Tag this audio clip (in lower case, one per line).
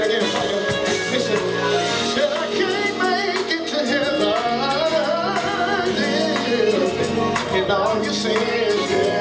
male singing
music